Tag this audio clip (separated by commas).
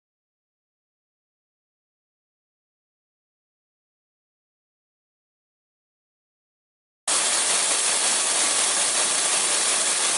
Steam